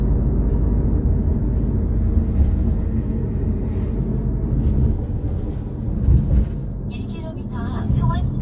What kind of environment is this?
car